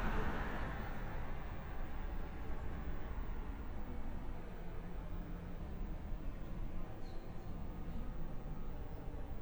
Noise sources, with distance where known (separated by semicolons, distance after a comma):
engine of unclear size